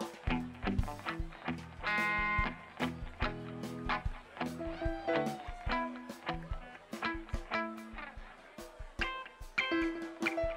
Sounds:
music

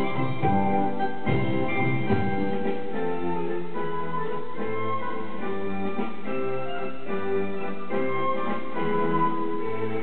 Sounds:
piano, electric piano, keyboard (musical)

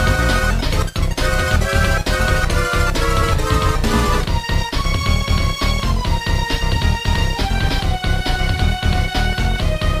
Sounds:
music

